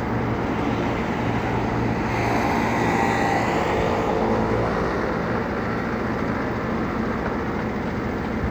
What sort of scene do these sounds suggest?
street